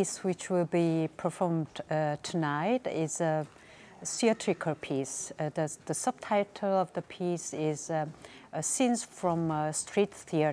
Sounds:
speech

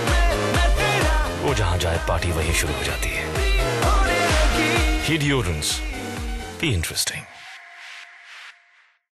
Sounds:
music, speech

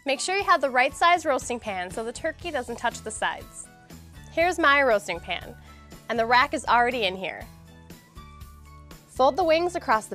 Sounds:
speech, music

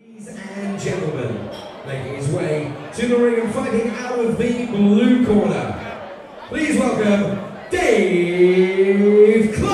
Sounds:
speech

